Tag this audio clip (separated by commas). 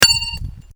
Domestic sounds, silverware